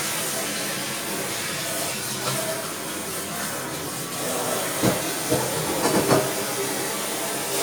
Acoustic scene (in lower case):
kitchen